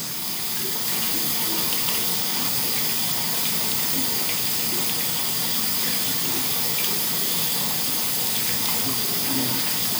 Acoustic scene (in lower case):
restroom